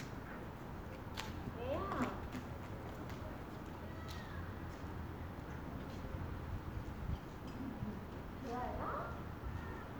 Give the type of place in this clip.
residential area